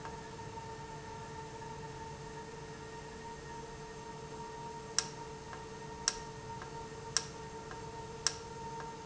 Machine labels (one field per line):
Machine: valve